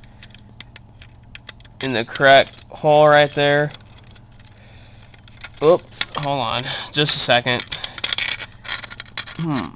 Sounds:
speech

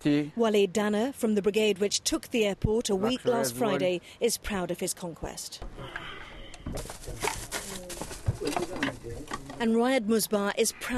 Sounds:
speech

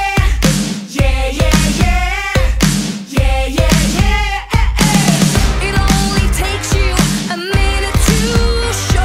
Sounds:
music

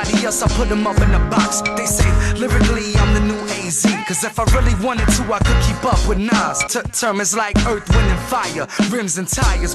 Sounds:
music, rapping

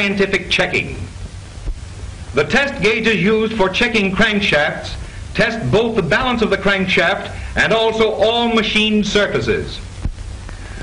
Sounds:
speech

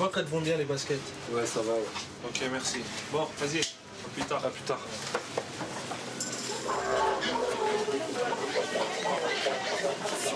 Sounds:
speech

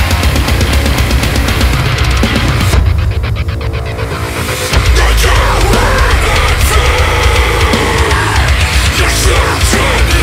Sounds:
angry music, music

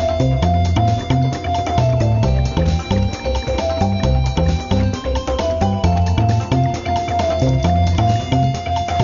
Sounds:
music

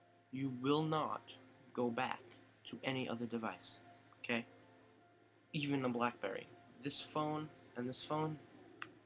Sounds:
speech

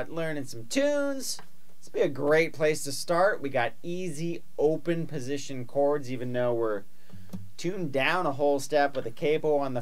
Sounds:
speech

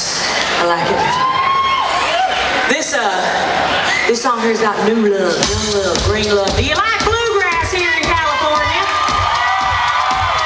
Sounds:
music, speech

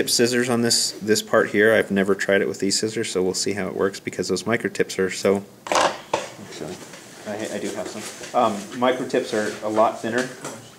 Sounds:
speech

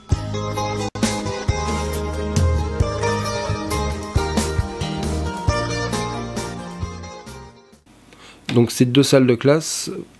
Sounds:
speech, music

